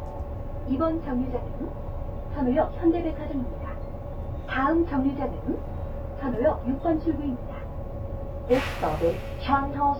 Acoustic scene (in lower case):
bus